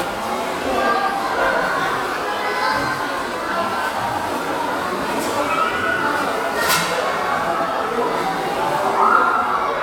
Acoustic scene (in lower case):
crowded indoor space